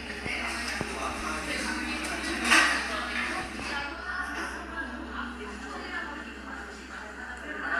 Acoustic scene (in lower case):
crowded indoor space